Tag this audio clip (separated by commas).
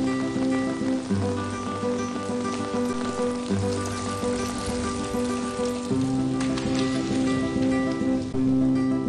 Music